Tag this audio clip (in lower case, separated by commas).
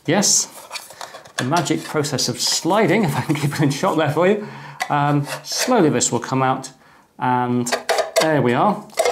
inside a small room, speech